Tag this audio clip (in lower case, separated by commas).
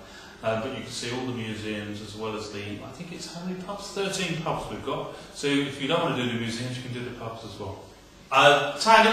speech